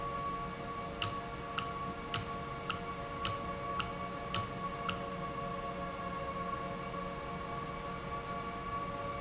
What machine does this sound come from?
valve